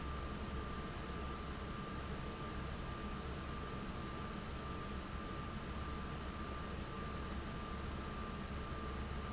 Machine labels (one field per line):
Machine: fan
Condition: abnormal